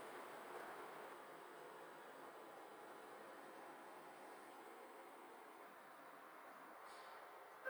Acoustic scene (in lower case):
elevator